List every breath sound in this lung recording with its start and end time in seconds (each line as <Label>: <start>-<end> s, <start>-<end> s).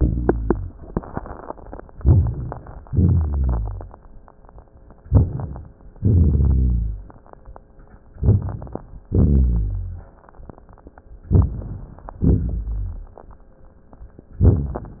Inhalation: 1.95-2.85 s, 5.05-5.76 s, 8.22-9.03 s, 11.30-12.15 s
Exhalation: 2.89-4.08 s, 5.97-7.21 s, 9.08-10.28 s, 12.18-13.47 s
Rhonchi: 2.01-2.60 s, 2.89-3.94 s, 5.97-7.11 s, 9.08-10.11 s, 12.18-13.17 s
Crackles: 1.97-2.87 s, 2.89-4.08 s, 5.03-5.76 s, 8.22-9.08 s, 11.31-12.15 s, 12.18-13.47 s